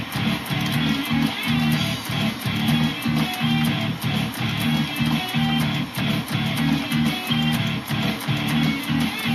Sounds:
Musical instrument, Music, Electric guitar, Plucked string instrument

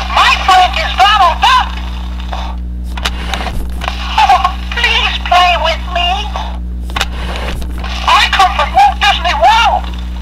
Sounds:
Speech

